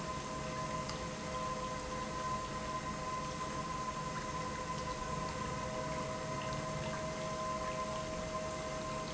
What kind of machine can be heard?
pump